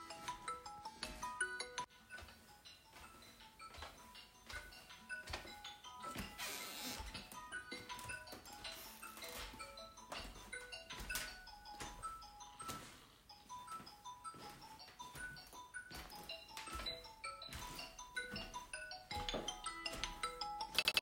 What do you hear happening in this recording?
I walked in to the living room and my mobile was ringing